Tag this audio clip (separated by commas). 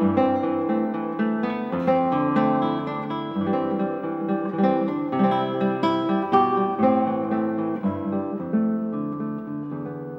Musical instrument, Music, Strum, Guitar, Plucked string instrument